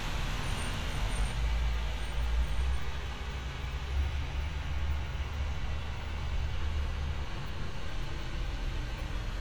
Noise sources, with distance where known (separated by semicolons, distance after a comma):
engine of unclear size